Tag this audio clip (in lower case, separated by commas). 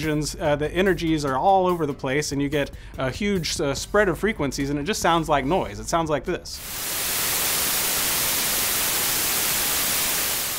speech, music